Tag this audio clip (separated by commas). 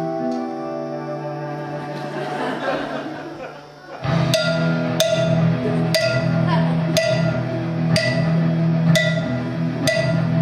Music, Classical music, Speech